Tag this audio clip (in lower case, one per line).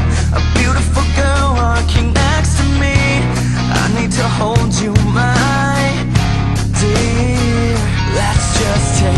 music